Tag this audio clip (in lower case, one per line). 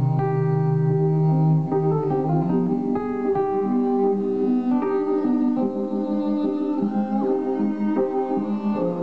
music